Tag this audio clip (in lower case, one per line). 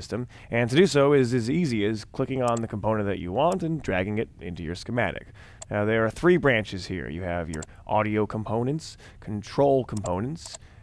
speech